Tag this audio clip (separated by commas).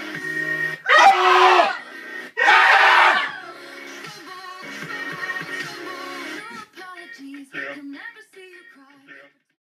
Music